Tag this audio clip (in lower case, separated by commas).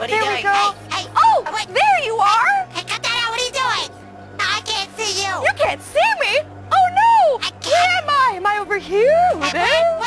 inside a small room, music, speech